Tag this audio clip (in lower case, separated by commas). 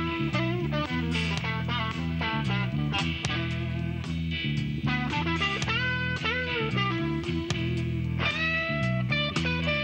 music